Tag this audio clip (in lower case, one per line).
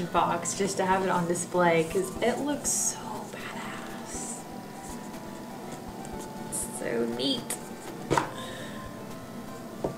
inside a small room
music
speech